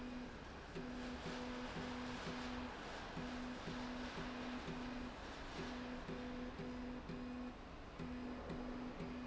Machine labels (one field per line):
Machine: slide rail